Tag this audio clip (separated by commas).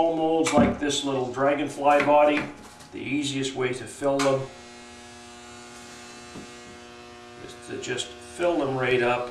Speech